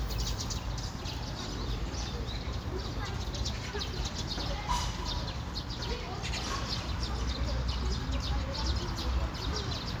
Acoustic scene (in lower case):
park